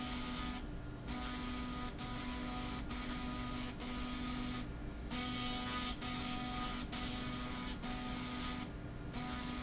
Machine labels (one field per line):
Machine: slide rail